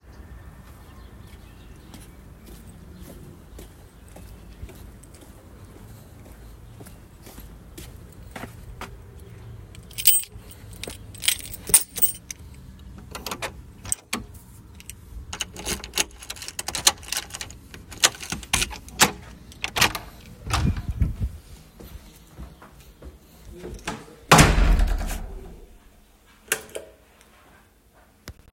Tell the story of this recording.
I arrived home and took my keys out of my pocket. I opened the front door and walked inside. Then, I turned on the light switch.